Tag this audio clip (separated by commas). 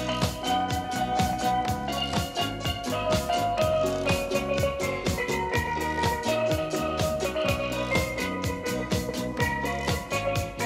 playing steelpan